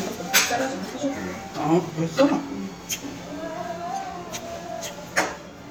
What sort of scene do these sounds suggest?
restaurant